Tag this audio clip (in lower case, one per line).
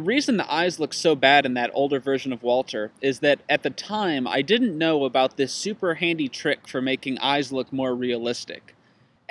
speech